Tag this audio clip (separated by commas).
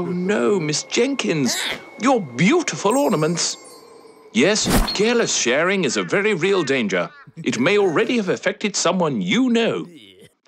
Speech, Music